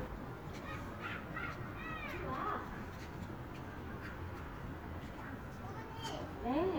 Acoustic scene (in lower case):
residential area